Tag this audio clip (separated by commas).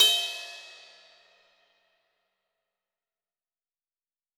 Music, Percussion, Cymbal, Musical instrument, Crash cymbal